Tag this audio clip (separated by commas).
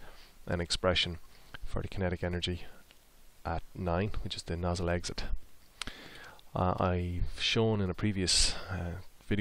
Speech